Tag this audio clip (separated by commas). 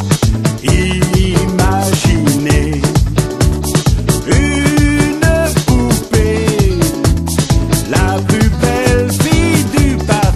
Music